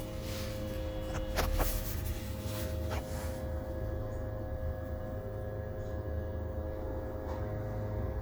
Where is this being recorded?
on a bus